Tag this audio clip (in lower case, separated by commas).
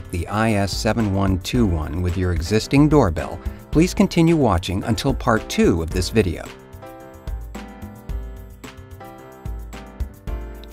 music, speech